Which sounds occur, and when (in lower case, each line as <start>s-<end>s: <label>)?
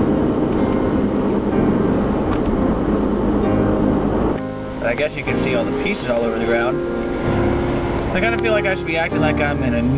0.0s-9.9s: car
0.0s-9.9s: distortion
0.0s-9.9s: music
0.5s-0.6s: tick
0.7s-0.8s: tick
2.3s-2.3s: generic impact sounds
2.4s-2.5s: tick
4.3s-4.4s: tick
4.8s-6.7s: male speech
7.0s-7.1s: tick
7.6s-7.8s: tick
7.9s-8.0s: tick
8.1s-9.9s: male speech
8.3s-8.4s: tick